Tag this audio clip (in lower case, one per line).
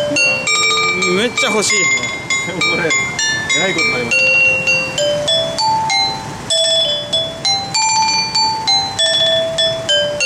playing glockenspiel